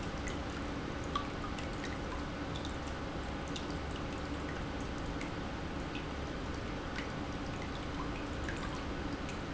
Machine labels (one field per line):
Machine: pump